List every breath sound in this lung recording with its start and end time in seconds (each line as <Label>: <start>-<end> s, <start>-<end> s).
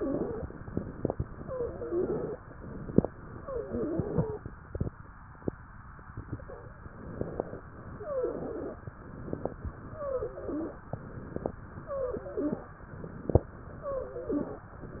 Inhalation: 0.57-1.37 s, 2.45-3.25 s, 6.96-7.63 s, 9.09-9.75 s, 10.95-11.61 s, 12.84-13.51 s
Exhalation: 1.42-2.41 s, 3.40-4.38 s, 7.95-8.86 s, 9.92-10.84 s, 11.86-12.77 s, 13.70-14.69 s
Wheeze: 0.00-0.48 s, 1.42-2.41 s, 3.40-4.38 s, 7.95-8.86 s, 9.92-10.84 s, 11.86-12.77 s, 13.70-14.69 s